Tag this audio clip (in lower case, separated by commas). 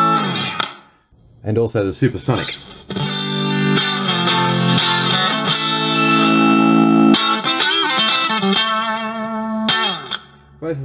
speech, music